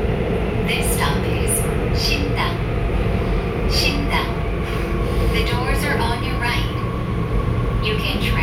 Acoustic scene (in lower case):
subway train